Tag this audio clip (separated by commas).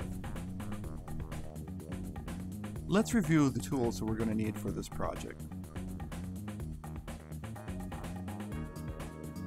Music, Speech